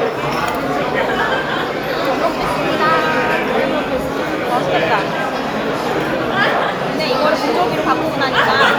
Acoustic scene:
restaurant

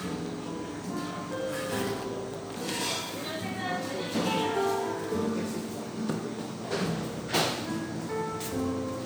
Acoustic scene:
cafe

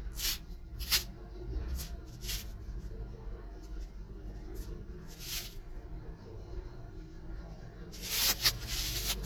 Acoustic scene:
elevator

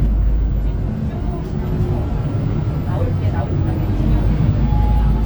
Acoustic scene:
bus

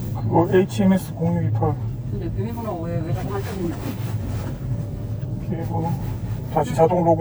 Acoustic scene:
car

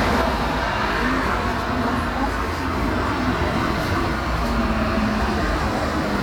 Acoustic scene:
street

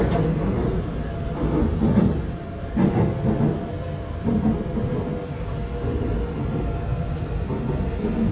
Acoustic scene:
subway train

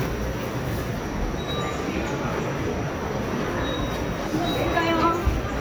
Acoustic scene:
subway station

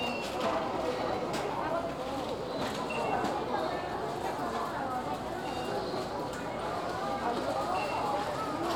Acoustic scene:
crowded indoor space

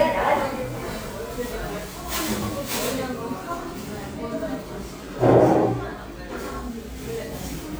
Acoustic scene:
cafe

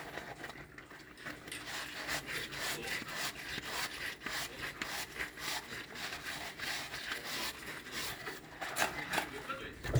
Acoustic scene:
kitchen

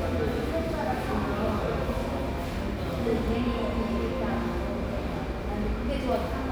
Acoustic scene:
cafe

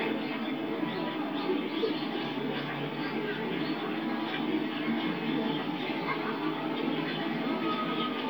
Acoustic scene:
park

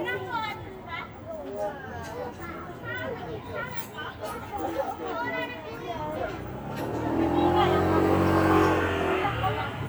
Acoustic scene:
residential area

